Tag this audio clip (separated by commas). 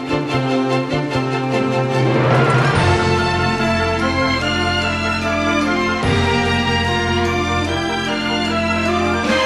Soundtrack music, Music